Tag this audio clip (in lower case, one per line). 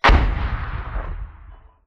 explosion